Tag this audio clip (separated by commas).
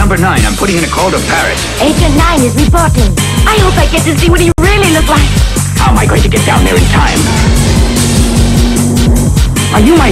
Music, outside, rural or natural, Speech